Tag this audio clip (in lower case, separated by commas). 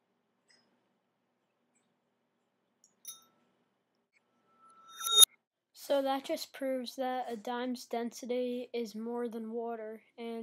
speech